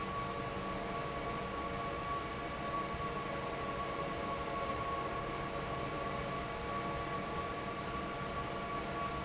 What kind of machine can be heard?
fan